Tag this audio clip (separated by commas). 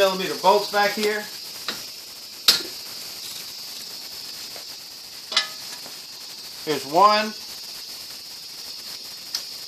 Speech